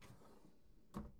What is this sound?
drawer opening